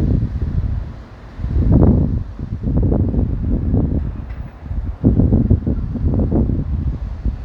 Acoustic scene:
street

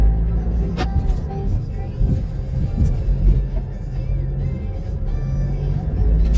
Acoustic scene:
car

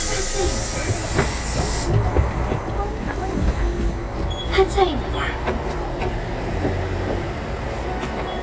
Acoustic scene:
bus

